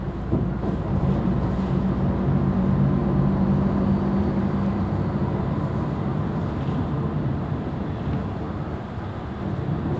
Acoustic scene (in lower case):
bus